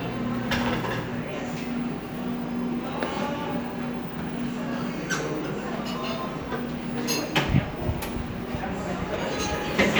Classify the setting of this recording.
cafe